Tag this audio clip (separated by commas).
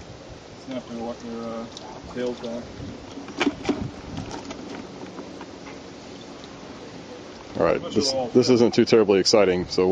Vehicle, outside, rural or natural, Speech